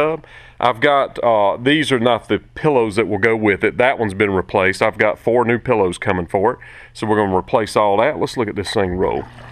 A man talking, followed by gentle water stream